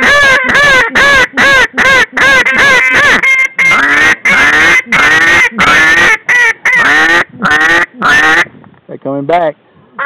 Multiple ducks are quacking in the background